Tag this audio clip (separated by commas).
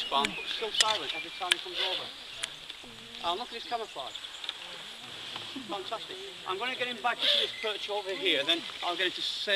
Speech, Animal, Bird